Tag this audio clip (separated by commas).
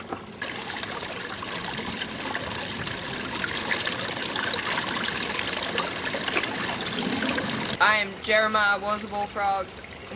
Speech